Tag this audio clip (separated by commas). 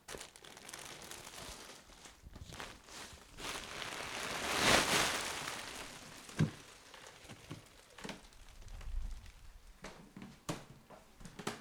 Crumpling